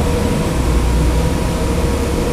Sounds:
vehicle, motor vehicle (road), bus

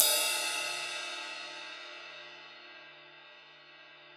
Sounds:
percussion, cymbal, crash cymbal, music, musical instrument

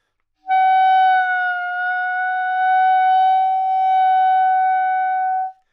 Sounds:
musical instrument, music, woodwind instrument

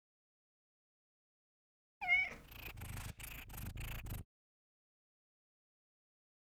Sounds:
meow, pets, animal, purr, cat

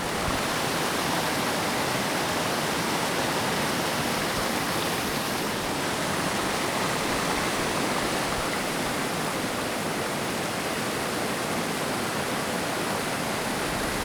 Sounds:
water

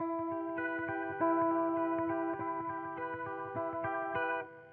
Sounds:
guitar, plucked string instrument, electric guitar, music, musical instrument

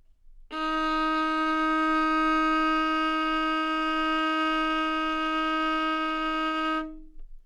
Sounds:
bowed string instrument, musical instrument, music

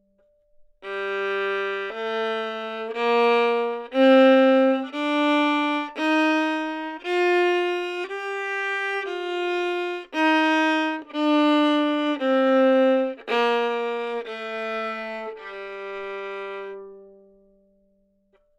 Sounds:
bowed string instrument, music, musical instrument

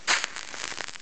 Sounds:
crackle

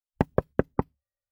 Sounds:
domestic sounds, knock, door, wood

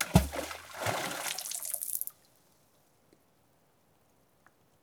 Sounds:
water, splash, liquid

